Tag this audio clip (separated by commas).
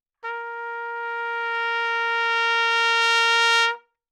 Brass instrument, Music, Musical instrument, Trumpet